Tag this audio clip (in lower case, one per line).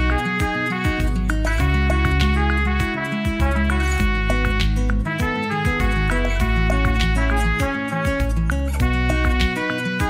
clarinet
music